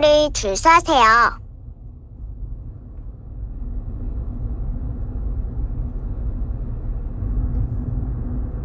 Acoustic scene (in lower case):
car